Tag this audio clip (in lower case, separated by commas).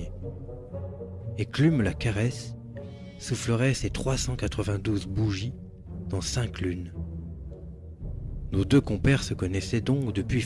speech, music